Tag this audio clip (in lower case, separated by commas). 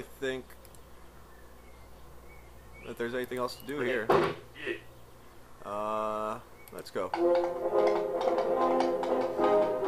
speech, music